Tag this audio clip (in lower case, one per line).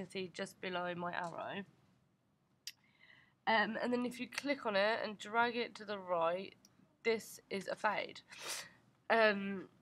speech